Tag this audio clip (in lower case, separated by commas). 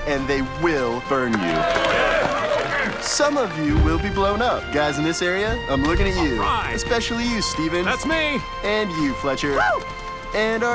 speech, monologue, music, male speech